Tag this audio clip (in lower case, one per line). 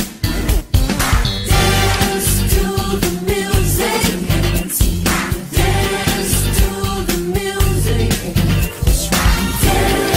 music
dance music